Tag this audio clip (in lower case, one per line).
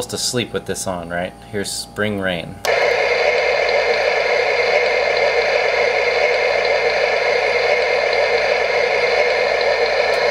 speech